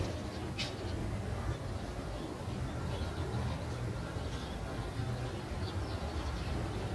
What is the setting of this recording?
residential area